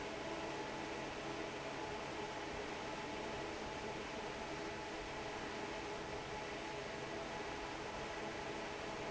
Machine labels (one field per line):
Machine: fan